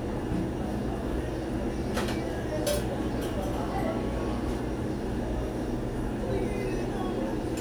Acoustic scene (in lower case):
cafe